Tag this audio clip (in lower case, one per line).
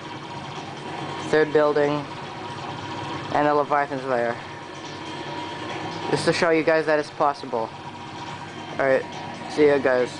mechanisms